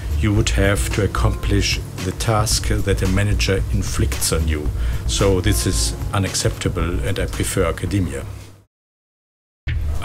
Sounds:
music, speech

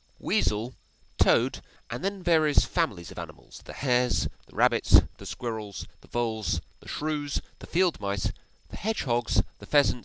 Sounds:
speech

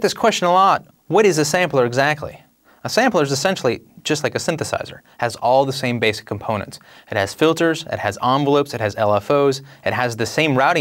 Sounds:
speech

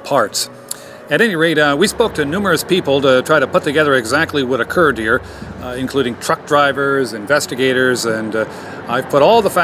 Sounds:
speech, music

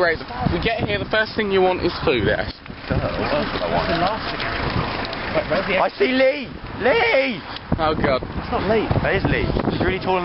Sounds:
speech, car

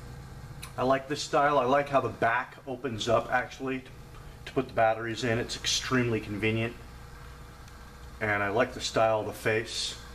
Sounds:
speech

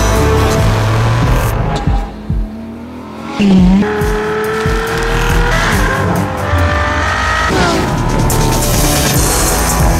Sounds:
car, auto racing, vehicle

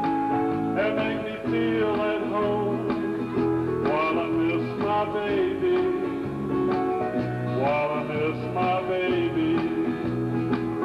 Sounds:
music, male singing

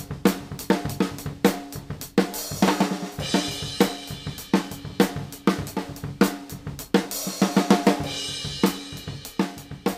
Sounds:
drum, bass drum, drum kit, drum roll, snare drum, percussion, rimshot

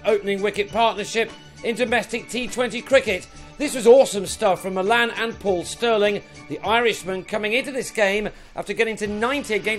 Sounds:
speech, music

